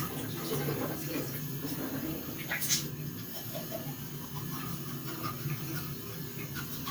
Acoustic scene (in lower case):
restroom